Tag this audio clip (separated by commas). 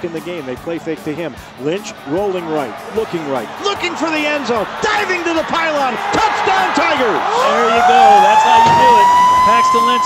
Music, Speech, speech babble